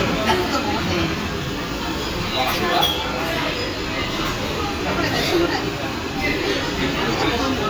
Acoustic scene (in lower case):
crowded indoor space